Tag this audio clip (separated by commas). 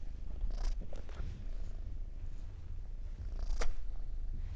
Purr, Animal, pets, Cat